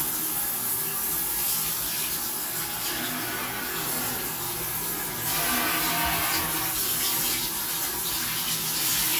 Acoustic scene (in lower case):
restroom